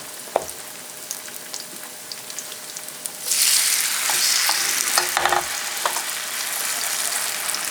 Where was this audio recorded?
in a kitchen